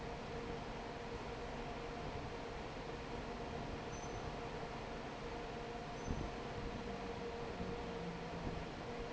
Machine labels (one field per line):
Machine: fan